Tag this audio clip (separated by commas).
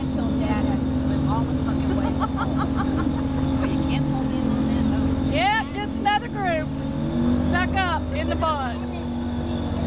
Motorboat, Speech